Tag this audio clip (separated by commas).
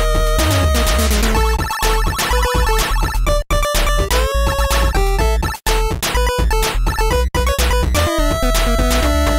Music